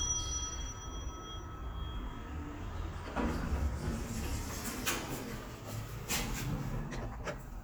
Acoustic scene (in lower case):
elevator